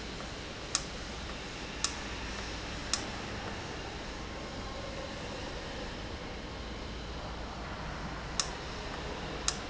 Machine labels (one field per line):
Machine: valve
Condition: abnormal